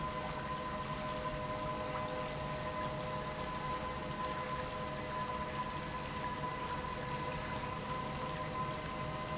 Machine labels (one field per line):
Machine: pump